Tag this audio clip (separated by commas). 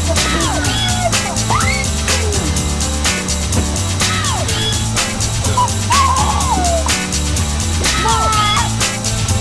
Speech, Music